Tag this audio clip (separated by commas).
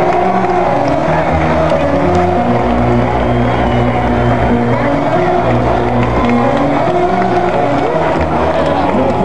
Speech, Music